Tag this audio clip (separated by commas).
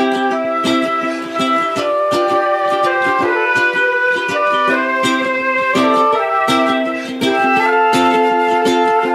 Musical instrument, Flute, Wind instrument, Ukulele, Music